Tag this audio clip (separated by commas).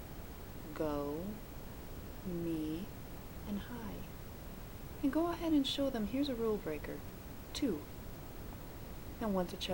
Microwave oven, Speech